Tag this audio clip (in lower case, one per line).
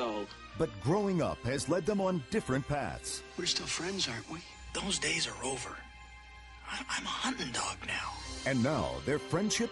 speech
music